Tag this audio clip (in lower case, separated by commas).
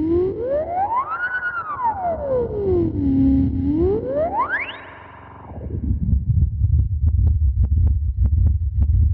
music, effects unit